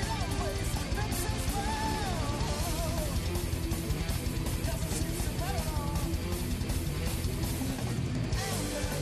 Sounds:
heavy metal, rock and roll, music, punk rock, disco

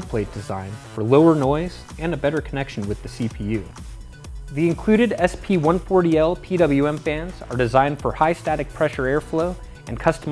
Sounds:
music, speech

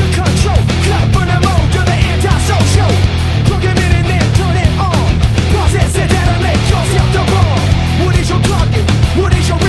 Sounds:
music

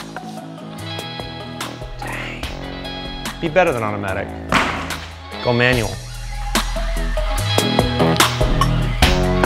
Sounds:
speech, music

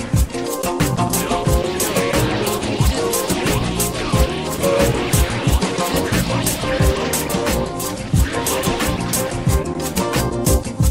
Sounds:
sound effect, music

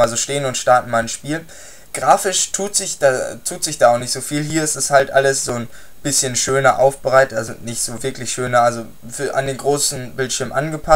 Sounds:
speech

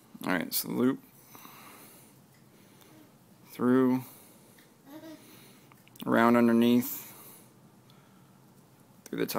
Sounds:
speech, inside a small room

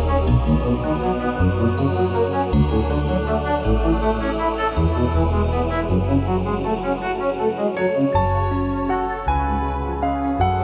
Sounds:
background music

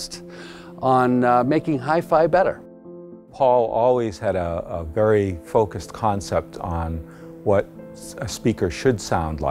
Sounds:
music, speech

